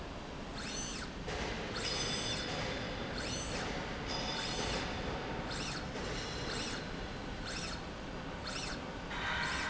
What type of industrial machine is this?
slide rail